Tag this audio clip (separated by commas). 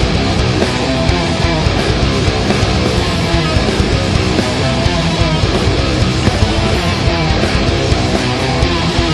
Music